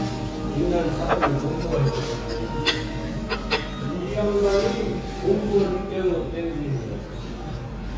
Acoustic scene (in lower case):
restaurant